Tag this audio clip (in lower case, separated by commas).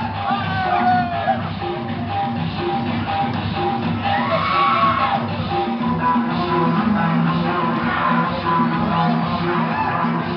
music